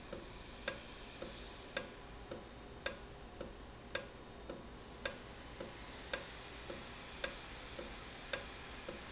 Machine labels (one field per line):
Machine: valve